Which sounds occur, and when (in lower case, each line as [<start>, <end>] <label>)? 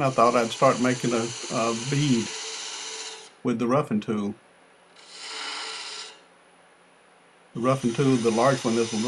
[0.00, 3.27] power tool
[0.00, 9.05] mechanisms
[0.00, 2.24] man speaking
[3.41, 4.32] man speaking
[4.93, 6.16] power tool
[7.52, 9.05] man speaking
[7.53, 9.05] power tool